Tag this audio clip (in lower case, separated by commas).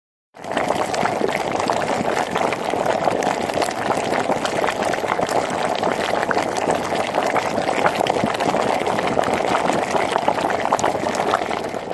boiling, liquid